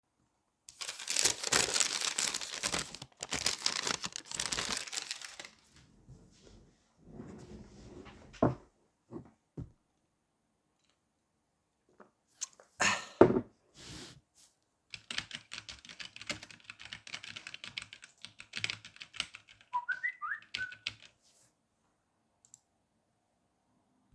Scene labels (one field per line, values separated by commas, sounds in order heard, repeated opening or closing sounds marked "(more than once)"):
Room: office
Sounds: keyboard typing, phone ringing